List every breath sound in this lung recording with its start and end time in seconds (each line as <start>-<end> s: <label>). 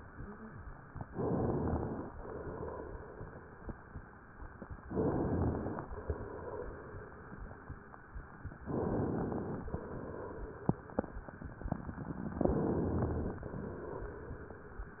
1.07-2.07 s: inhalation
1.09-2.07 s: crackles
2.07-4.00 s: exhalation
4.86-5.84 s: crackles
4.89-5.86 s: inhalation
5.88-7.75 s: exhalation
8.70-9.68 s: crackles
8.71-9.69 s: inhalation
9.69-10.90 s: exhalation
12.47-13.45 s: inhalation
12.47-13.45 s: crackles